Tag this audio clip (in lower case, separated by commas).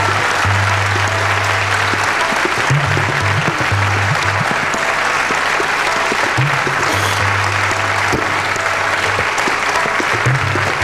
tabla, percussion